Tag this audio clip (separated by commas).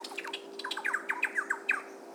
Wild animals, Bird, Animal